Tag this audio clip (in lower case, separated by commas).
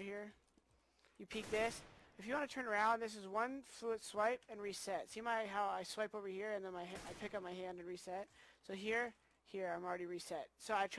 speech